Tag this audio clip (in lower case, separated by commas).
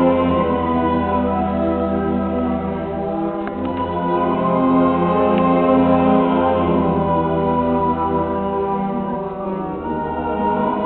music